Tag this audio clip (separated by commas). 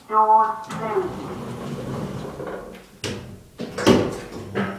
Sliding door, home sounds, Door